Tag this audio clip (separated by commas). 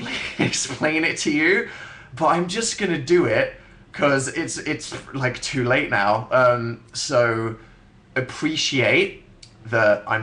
Speech